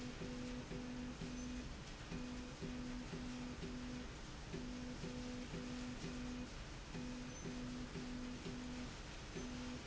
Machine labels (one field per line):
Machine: slide rail